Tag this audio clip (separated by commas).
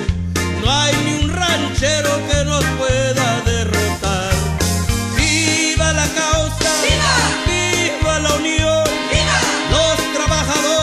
Singing, Music